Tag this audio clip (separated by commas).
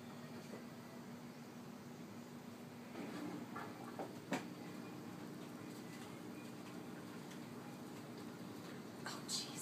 Hiss